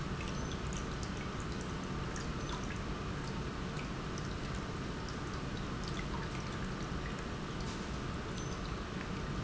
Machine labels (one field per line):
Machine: pump